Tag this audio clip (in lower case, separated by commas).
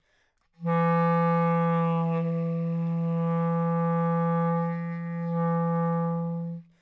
music, wind instrument, musical instrument